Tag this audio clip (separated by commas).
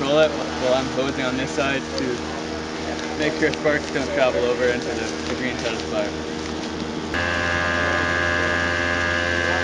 Speech